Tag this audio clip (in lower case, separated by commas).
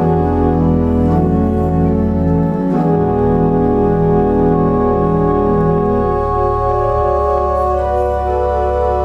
hammond organ, piano, organ, keyboard (musical), electric piano